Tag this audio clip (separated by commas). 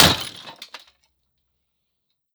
Shatter, Glass